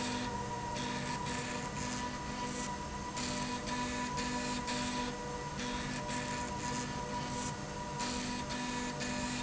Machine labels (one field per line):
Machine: slide rail